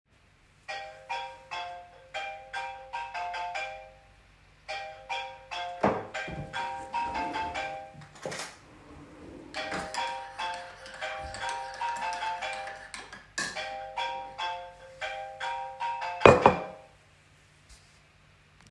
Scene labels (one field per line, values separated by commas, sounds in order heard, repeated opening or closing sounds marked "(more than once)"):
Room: living room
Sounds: phone ringing, cutlery and dishes, wardrobe or drawer (more than once)